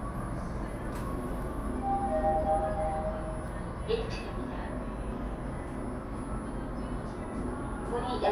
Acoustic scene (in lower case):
elevator